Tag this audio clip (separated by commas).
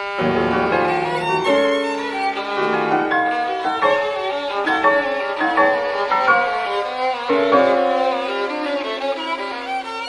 Violin, Music, Musical instrument